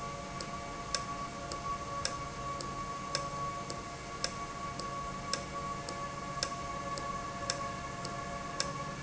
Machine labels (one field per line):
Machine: valve